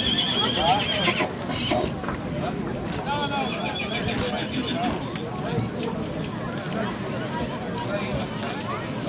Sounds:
speech, neigh, horse

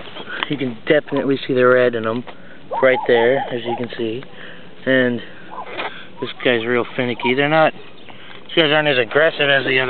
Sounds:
outside, rural or natural, speech, animal

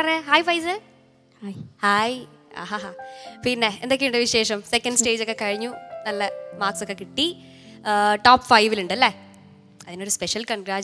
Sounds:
music, speech

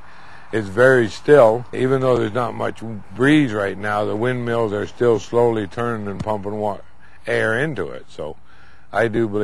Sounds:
speech

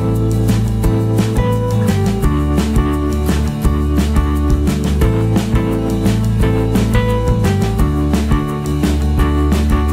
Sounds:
music

